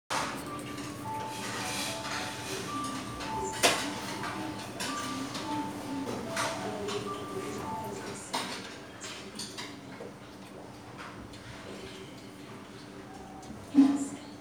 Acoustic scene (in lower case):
restaurant